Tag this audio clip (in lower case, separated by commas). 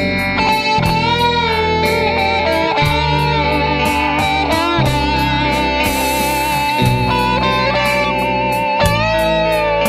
musical instrument, music, electric guitar